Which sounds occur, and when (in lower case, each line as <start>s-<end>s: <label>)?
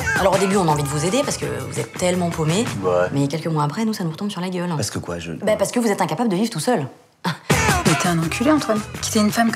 0.0s-1.4s: male singing
0.0s-2.7s: music
0.0s-9.5s: conversation
0.0s-2.7s: female speech
2.8s-7.5s: mechanisms
2.8s-3.1s: man speaking
3.1s-4.8s: female speech
4.7s-5.7s: man speaking
5.4s-7.0s: female speech
7.2s-7.5s: human sounds
7.5s-8.8s: female speech
7.5s-8.9s: male singing
7.5s-9.5s: music
9.1s-9.5s: female speech